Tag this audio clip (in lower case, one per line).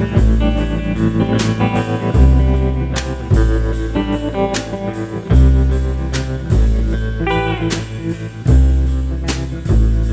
music
slide guitar